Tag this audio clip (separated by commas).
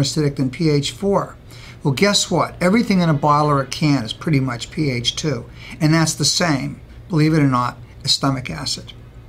Speech